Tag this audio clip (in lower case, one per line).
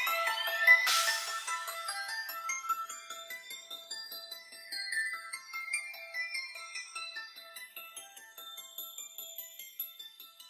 music